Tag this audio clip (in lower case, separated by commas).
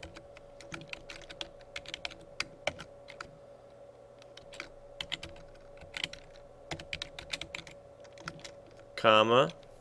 speech, typing